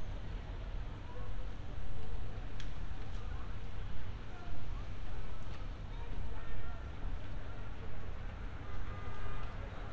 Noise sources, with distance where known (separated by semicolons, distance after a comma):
car horn, far; person or small group shouting, far